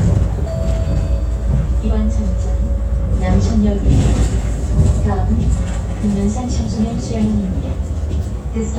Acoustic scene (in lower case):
bus